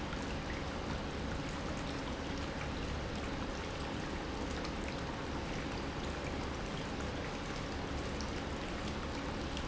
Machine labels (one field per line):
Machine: pump